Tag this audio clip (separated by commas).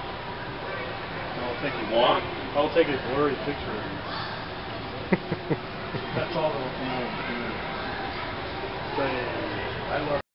Speech